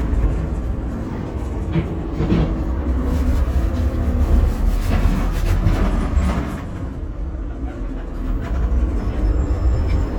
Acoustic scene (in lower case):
bus